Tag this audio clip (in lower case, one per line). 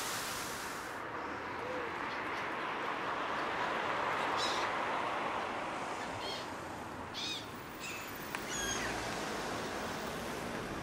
outside, rural or natural
bird